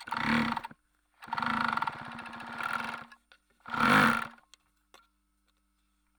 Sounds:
Mechanisms

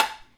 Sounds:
Tap

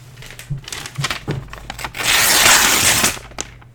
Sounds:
Tearing

